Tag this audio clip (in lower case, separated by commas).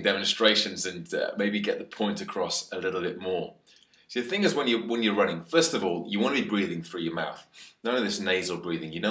male speech, inside a small room, speech